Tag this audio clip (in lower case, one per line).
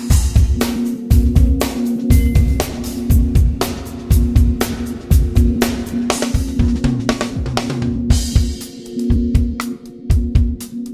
music